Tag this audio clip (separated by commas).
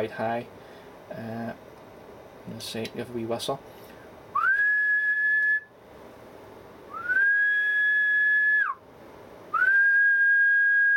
Whistling